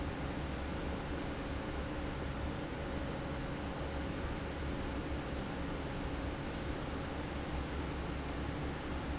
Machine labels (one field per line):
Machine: fan